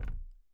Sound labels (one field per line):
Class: object falling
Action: being thrown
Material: plastic